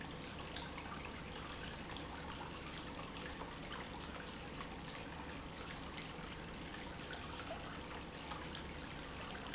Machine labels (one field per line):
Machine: pump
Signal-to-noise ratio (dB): 6 dB